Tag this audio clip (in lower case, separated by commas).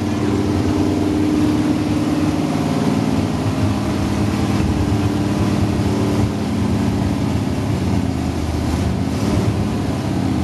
vehicle, medium engine (mid frequency)